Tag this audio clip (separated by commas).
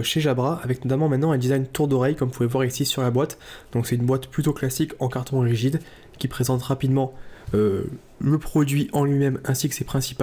Speech